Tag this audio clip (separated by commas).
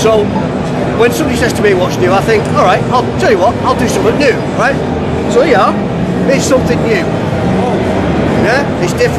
Speech